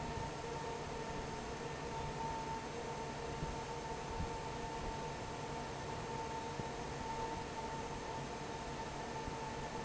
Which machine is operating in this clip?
fan